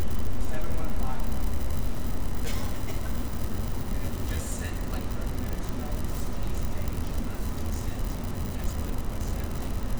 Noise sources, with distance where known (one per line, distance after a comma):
unidentified human voice